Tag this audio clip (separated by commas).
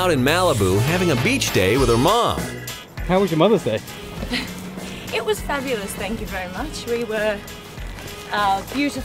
Speech, Music